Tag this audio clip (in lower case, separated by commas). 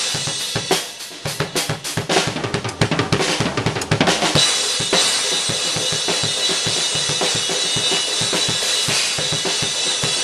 hi-hat, music